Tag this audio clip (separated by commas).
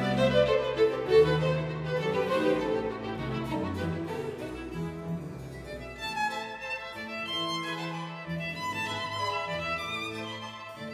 Musical instrument, fiddle, Music